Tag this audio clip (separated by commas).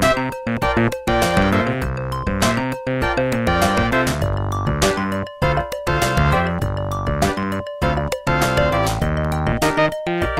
Music, Exciting music